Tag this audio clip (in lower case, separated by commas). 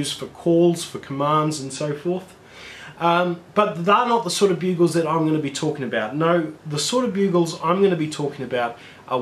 speech